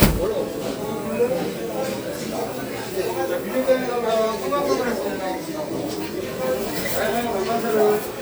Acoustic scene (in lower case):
crowded indoor space